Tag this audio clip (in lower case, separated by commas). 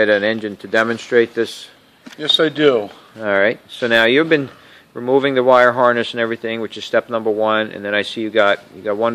speech